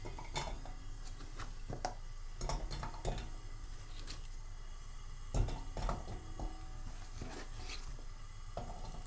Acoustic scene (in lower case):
kitchen